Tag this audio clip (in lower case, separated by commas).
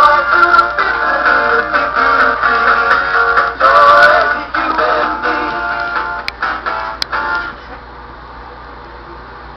music, synthetic singing